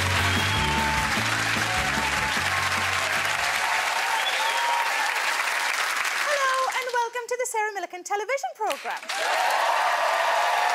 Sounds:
music, speech

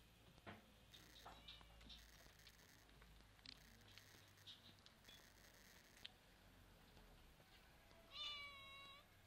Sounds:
pets, animal, cat

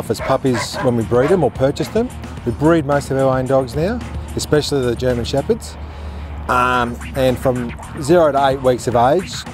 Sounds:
animal, music, dog, speech, pets, bow-wow

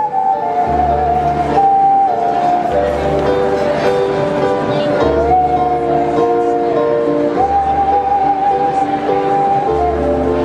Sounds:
music, whistling

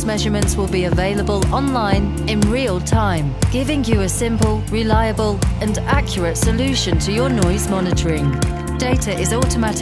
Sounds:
music, speech

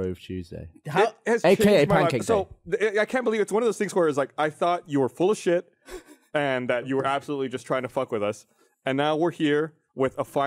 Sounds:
speech

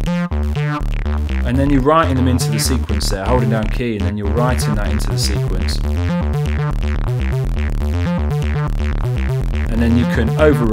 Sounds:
inside a small room, synthesizer, music, speech

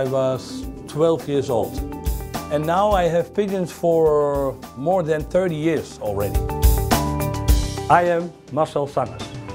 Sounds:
music, speech

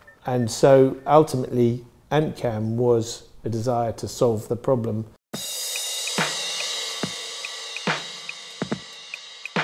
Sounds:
hi-hat, speech, music

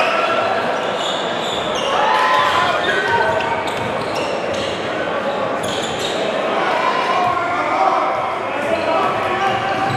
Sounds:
basketball bounce

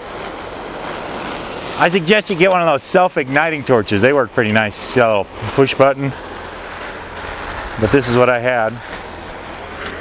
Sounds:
speech

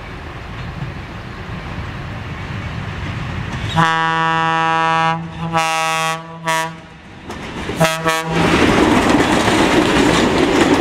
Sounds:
train, toot, vehicle, train wagon, rail transport

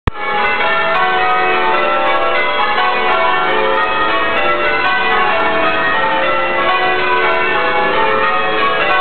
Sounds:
music, change ringing (campanology), bell

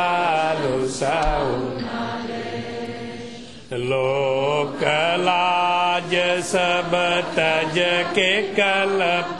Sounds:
mantra

